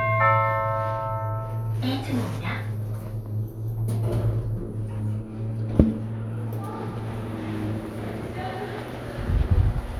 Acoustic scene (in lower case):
subway station